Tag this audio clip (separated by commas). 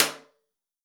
Hands, Clapping